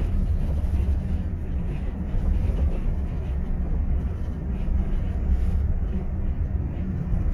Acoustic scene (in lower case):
bus